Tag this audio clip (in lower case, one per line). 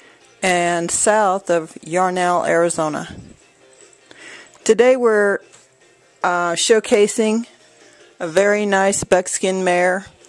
music
speech